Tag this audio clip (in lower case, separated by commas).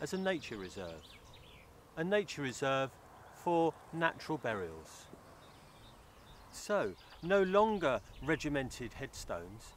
speech